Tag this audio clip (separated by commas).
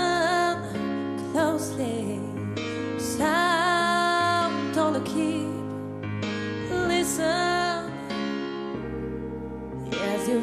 Music